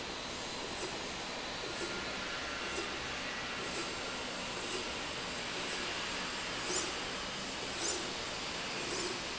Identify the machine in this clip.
slide rail